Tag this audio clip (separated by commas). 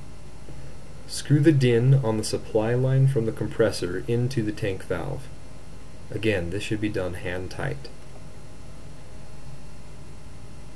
Speech